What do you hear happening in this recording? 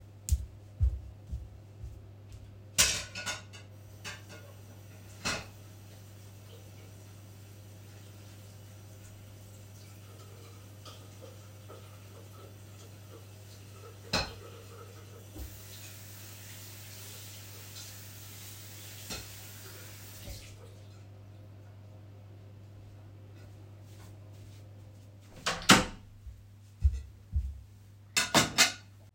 I make a few steps to get to the bathroom, turn on the faucet and wash a plate. Then i turn off the faucet, go to the bedroom, close the bedroom door and lay the plate on another plate to dry.